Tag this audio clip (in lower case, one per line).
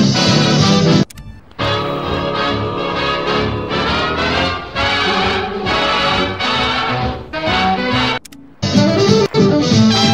music